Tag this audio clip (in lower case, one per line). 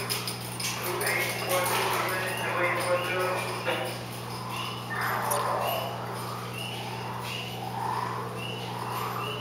speech